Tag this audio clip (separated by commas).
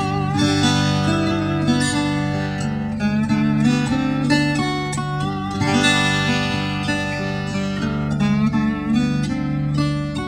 playing steel guitar